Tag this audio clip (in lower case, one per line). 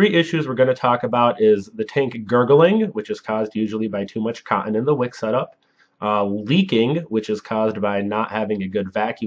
speech